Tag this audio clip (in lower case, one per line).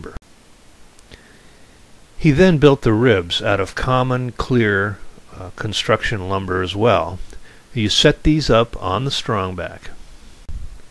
speech